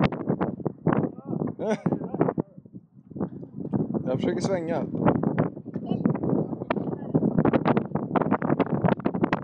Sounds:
speech

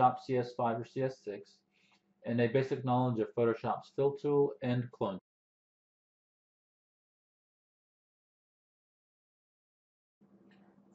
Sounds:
speech

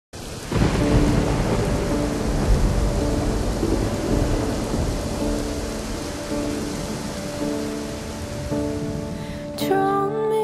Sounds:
rain, thunderstorm, thunder, rain on surface

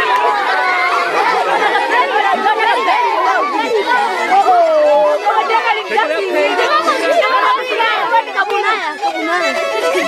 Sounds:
speech, music, musical instrument, violin

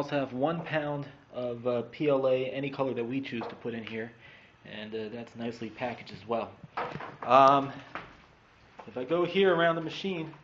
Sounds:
speech

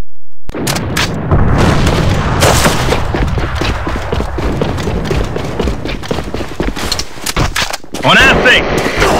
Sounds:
boom, speech

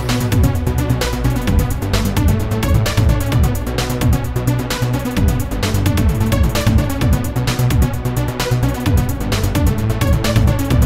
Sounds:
music

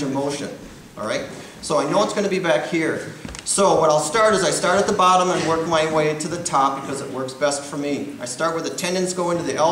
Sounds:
speech

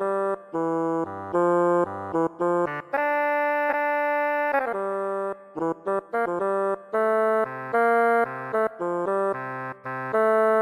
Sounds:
music

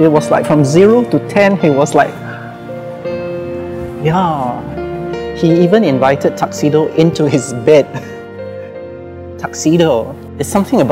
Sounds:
music, speech

